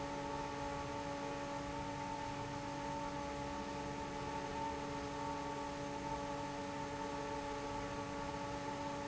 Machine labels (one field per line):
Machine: fan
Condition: normal